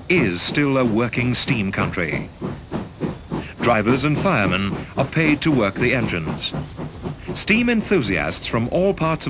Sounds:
speech

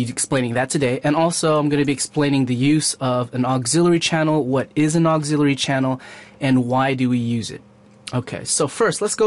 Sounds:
speech

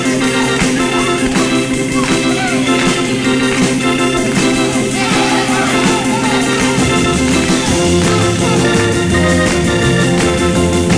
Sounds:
music
speech

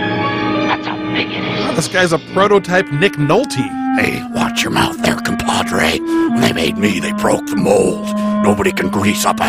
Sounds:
music
outside, rural or natural
speech

